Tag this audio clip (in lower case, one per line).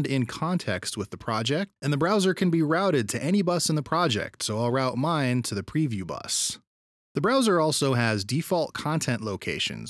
speech